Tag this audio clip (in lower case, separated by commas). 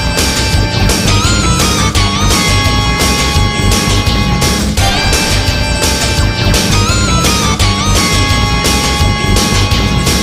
music